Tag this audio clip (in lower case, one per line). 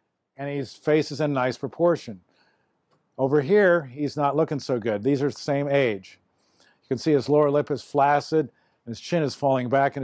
speech